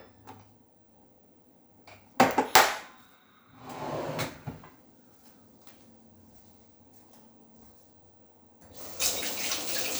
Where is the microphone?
in a kitchen